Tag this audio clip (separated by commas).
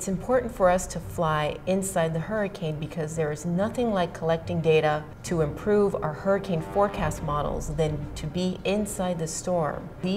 Music, Speech, inside a small room